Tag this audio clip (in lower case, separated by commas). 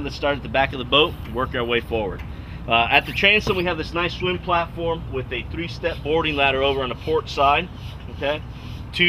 vehicle, speech